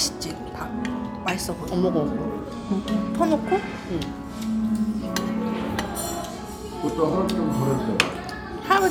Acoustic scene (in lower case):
restaurant